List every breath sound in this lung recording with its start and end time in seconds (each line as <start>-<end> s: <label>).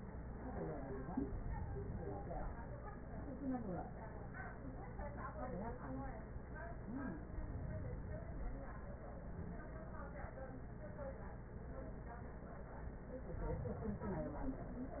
1.26-2.76 s: inhalation
7.20-8.70 s: inhalation
13.25-14.75 s: inhalation